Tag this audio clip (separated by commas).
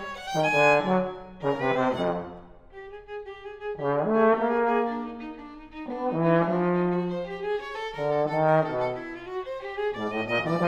playing trombone